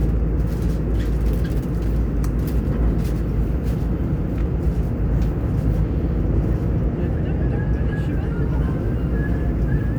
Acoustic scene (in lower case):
subway train